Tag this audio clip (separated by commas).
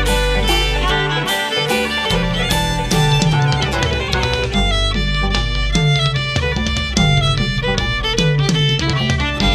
Classical music, Electric guitar, Music, Musical instrument, Guitar, Violin, Bluegrass, Heavy metal, Tapping (guitar technique)